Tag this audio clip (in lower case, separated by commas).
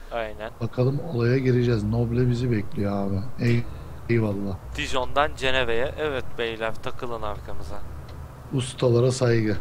speech